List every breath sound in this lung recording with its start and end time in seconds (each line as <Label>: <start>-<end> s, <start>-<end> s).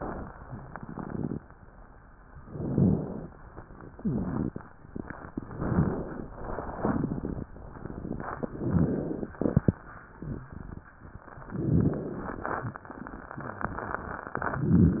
Inhalation: 2.47-3.30 s, 5.41-6.24 s, 8.48-9.32 s, 11.50-12.18 s
Rhonchi: 2.47-3.30 s, 5.41-6.24 s, 8.48-9.32 s, 11.50-12.18 s